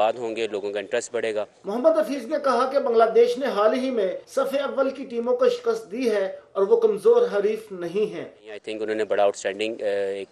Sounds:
Speech

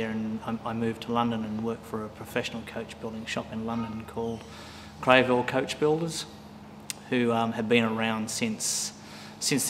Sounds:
Speech

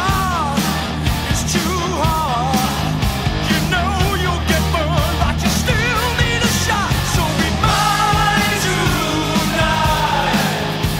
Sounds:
Exciting music, Music

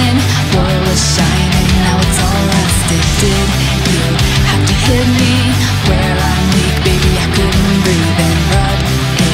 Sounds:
Music of Asia, Music

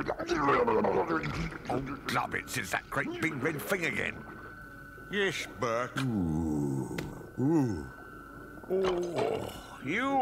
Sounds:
Speech

